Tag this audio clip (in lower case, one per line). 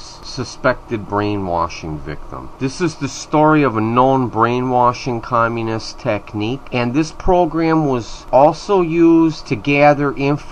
speech